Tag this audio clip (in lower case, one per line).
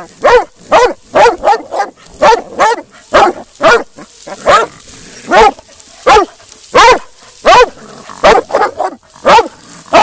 outside, rural or natural
pets
animal
dog